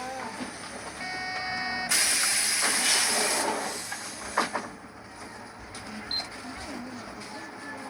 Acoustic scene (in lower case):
bus